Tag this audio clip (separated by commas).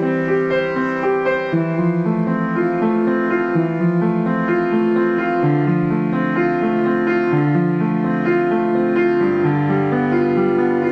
Piano, Keyboard (musical), Music, Musical instrument